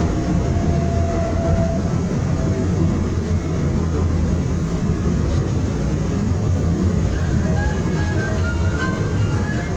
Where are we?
on a subway train